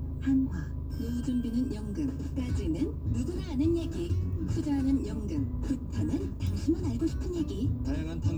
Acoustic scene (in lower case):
car